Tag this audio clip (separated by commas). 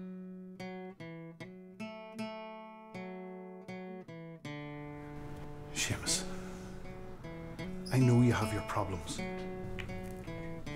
Speech, Music